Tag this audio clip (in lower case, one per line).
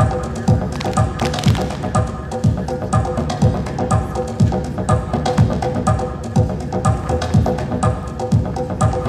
music